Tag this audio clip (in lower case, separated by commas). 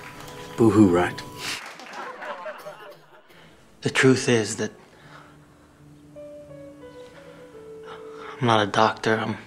monologue, male speech, music, speech